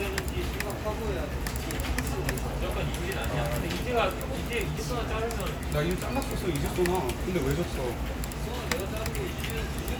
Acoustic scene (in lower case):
crowded indoor space